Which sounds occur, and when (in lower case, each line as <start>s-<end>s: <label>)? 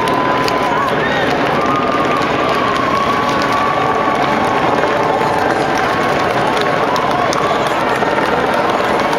0.0s-9.1s: speech noise
0.0s-9.1s: run
0.0s-9.1s: roadway noise
1.0s-1.3s: whistling